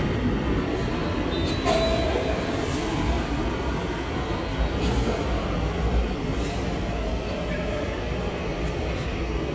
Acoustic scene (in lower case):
subway station